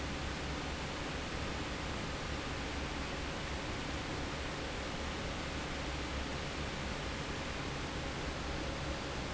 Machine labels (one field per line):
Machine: fan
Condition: normal